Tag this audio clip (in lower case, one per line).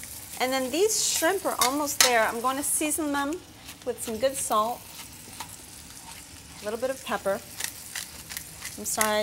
sizzle
frying (food)